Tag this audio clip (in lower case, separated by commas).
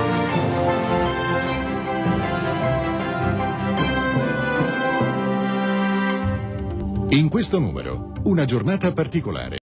speech, music